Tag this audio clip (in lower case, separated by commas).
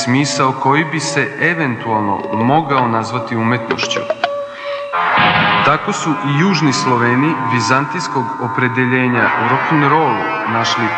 music, speech